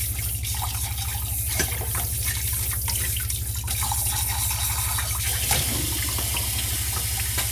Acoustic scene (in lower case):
kitchen